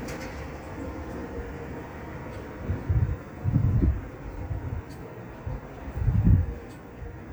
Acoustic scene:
residential area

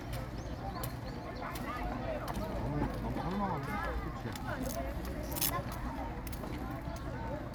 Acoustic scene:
park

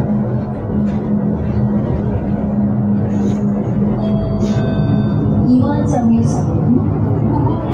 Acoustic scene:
bus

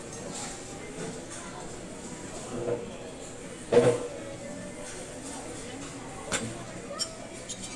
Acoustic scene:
restaurant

